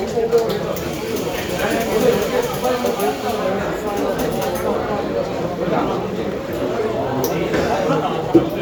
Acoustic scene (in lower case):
cafe